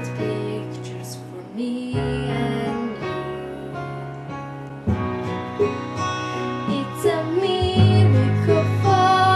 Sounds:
singing, music

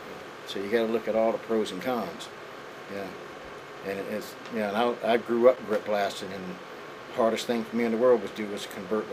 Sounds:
speech

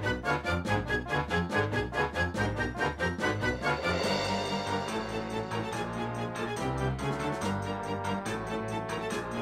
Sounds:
music

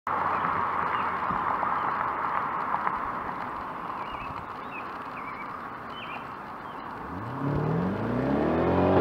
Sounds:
vroom

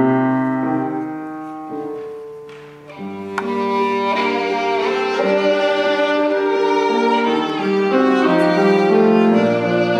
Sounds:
music, musical instrument, fiddle

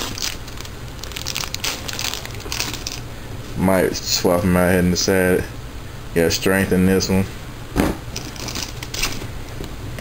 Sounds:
speech, inside a small room

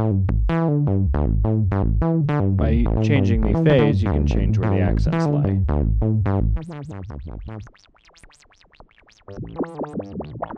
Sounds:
synthesizer, music, speech

